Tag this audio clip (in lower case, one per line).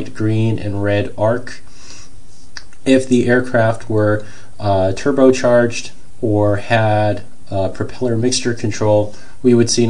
speech